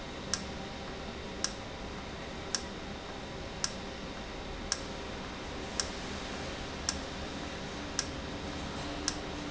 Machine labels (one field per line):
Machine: valve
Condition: normal